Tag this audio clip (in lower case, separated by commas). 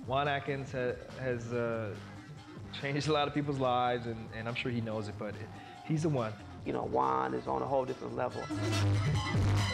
music, soul music, techno, speech